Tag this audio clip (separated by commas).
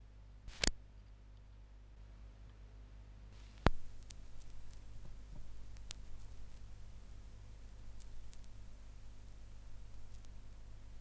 Crackle